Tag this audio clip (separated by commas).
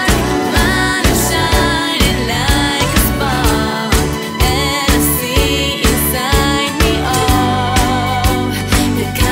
Music